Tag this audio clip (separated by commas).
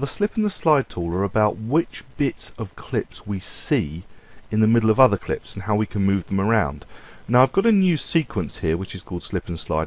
Speech